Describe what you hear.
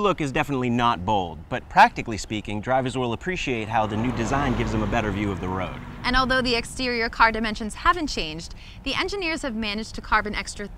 A man speaks, a vehicle engine sounds and a woman speaks